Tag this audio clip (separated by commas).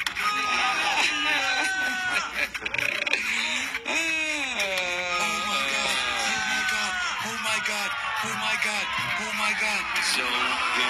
Speech